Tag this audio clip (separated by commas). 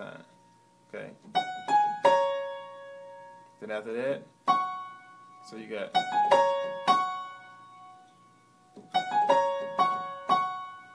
Piano, Keyboard (musical)